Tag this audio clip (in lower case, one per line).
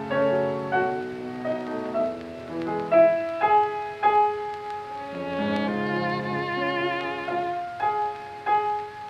music
pizzicato
musical instrument
violin